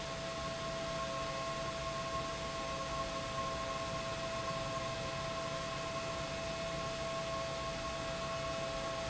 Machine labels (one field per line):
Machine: pump